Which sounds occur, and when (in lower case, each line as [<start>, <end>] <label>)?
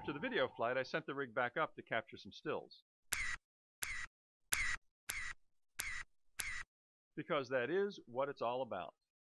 [0.00, 0.61] sound effect
[0.00, 2.79] man speaking
[3.08, 3.34] camera
[3.79, 4.04] camera
[4.49, 4.74] camera
[5.04, 5.30] camera
[5.76, 6.01] camera
[6.37, 6.60] camera
[7.14, 8.91] man speaking